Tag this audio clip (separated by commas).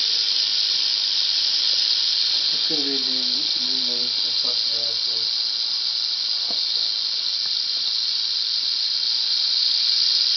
Snake, Speech